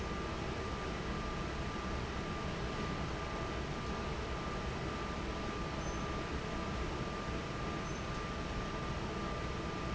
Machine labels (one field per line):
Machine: fan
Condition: normal